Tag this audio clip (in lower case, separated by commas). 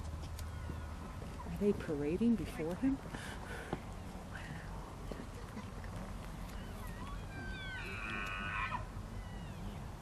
elk bugling